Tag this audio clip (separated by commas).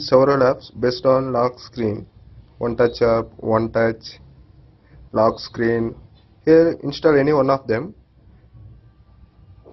Speech